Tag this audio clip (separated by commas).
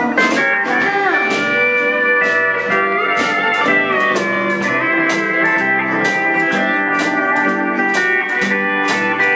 Plucked string instrument, Musical instrument, Music, Guitar